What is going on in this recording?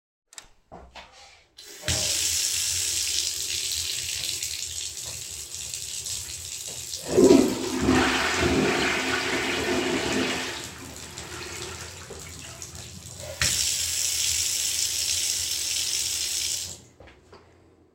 I was cleaning a bathtub and flushed the toilet